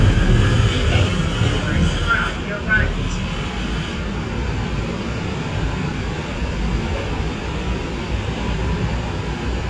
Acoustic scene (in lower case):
subway train